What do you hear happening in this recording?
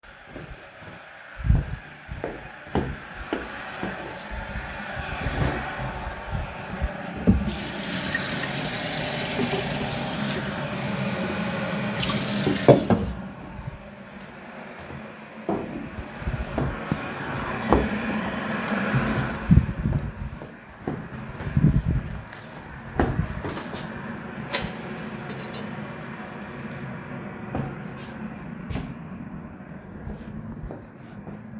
With the loud hissing from the kettle, I took two mugs from the shelf. I turned on the running water and filled one of them. After I threw a teaspoon of tea leaves into an empty mug. I was walking from the tap to the table all the time.